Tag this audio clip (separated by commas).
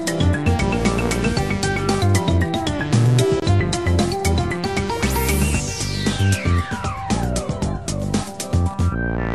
Music, Theme music, Soundtrack music